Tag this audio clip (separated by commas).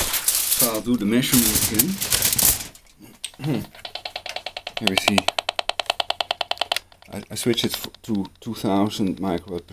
Typewriter